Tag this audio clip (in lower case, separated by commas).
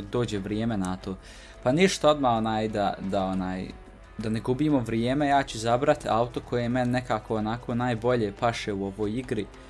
speech, music